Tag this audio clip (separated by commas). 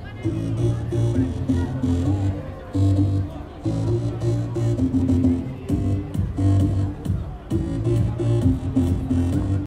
Speech, Music